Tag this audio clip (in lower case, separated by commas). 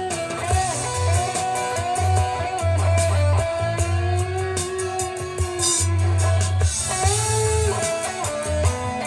bass guitar, guitar, plucked string instrument, music, musical instrument